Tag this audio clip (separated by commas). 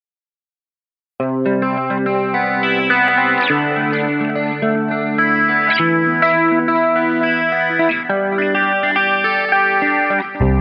Distortion